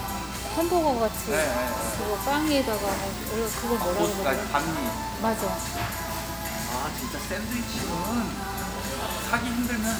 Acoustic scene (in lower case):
restaurant